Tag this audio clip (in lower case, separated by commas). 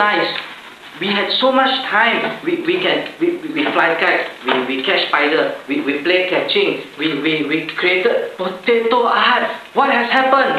man speaking, monologue, speech